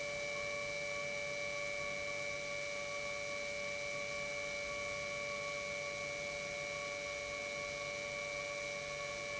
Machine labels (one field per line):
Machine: pump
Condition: normal